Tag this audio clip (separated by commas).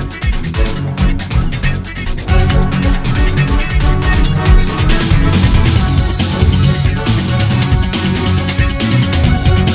Soundtrack music, Music, Electronica